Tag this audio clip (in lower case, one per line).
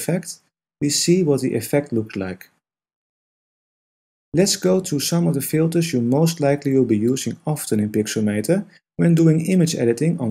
speech